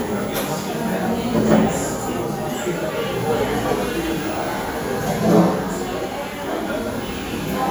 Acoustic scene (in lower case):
cafe